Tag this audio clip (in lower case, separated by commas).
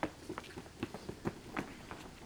run